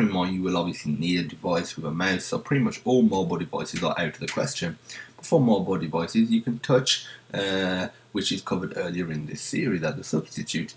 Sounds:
speech

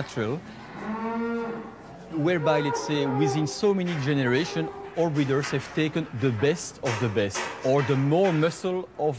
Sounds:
moo
bovinae
livestock

